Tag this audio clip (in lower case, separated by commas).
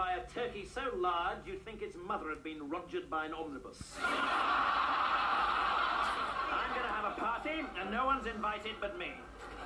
speech